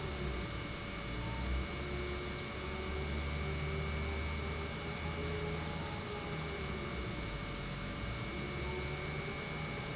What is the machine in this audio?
pump